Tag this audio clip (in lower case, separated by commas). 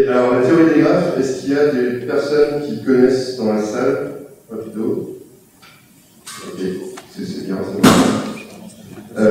dribble, speech